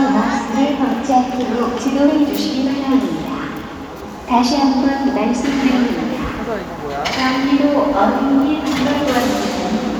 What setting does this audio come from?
crowded indoor space